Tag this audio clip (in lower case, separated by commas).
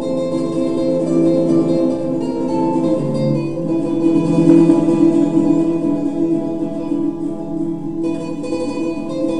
strum, guitar, plucked string instrument, musical instrument, music, acoustic guitar